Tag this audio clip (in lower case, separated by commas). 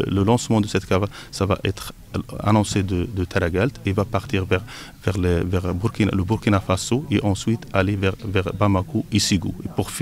speech